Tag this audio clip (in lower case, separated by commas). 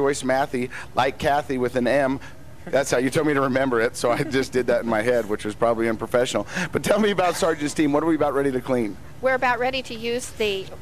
speech